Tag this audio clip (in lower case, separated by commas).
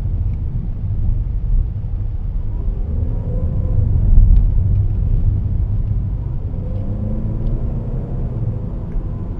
vehicle, rumble, car